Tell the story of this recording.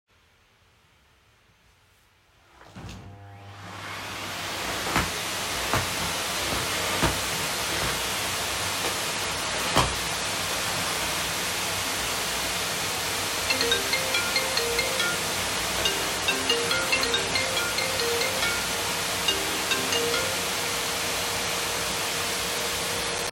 I placed my phone on a dresser in the bedroom. I turned on the vacuum cleaner and moved it around the carpet. While the vacuum was still running loudly, my phone started ringing. After a few seconds of overlap I cut the call.